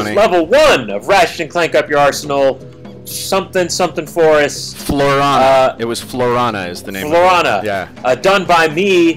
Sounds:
Speech, Music

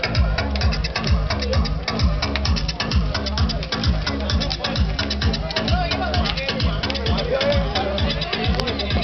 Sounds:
Speech, Music

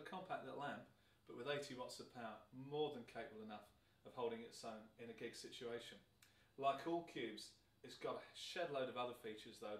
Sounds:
Speech

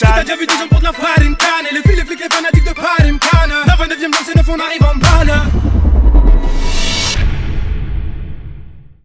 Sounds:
Music

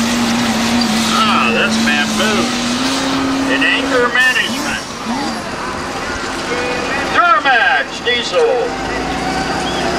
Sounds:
Speech

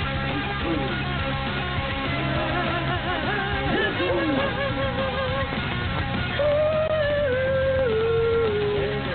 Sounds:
Speech, Music

